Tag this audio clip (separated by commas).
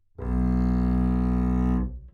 Musical instrument, Bowed string instrument, Music